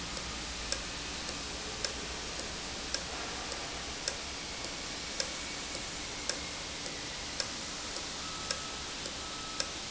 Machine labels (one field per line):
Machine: valve